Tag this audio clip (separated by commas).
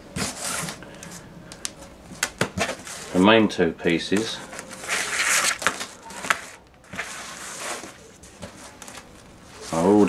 inside a small room, Speech